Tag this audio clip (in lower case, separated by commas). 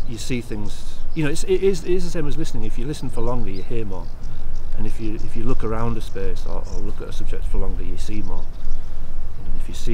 speech